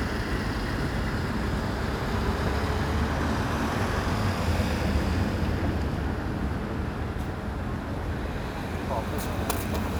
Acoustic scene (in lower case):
street